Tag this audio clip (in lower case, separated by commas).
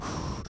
breathing, respiratory sounds